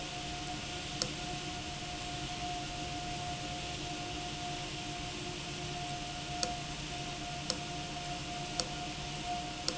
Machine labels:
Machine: valve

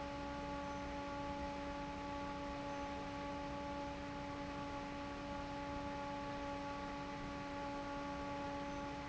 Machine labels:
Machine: fan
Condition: normal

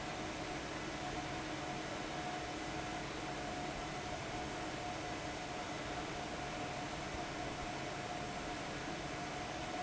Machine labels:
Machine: fan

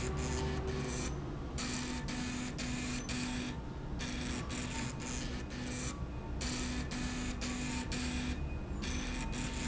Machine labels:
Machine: slide rail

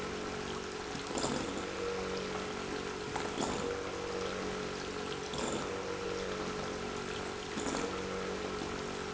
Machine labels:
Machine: pump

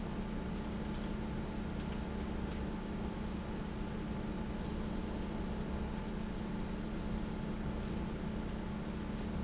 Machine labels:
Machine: fan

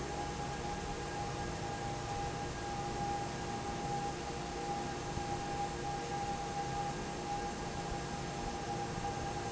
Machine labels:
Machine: fan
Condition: normal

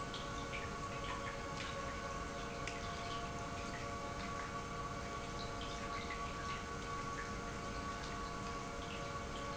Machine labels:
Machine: pump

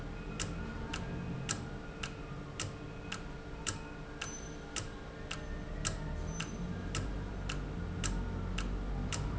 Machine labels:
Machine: valve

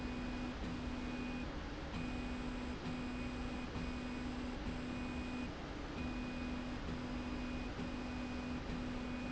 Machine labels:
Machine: slide rail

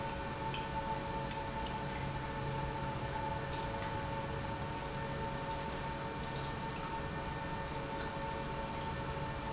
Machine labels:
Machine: pump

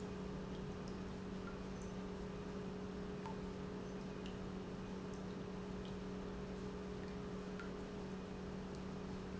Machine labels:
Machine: pump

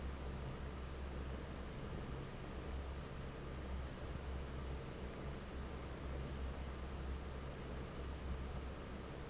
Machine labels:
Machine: fan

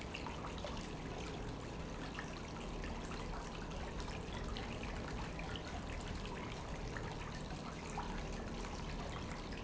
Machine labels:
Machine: pump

